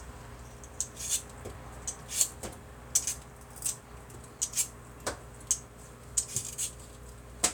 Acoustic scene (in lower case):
kitchen